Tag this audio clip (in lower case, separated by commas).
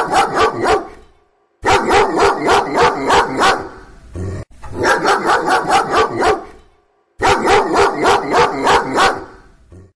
dog, pets, animal, bow-wow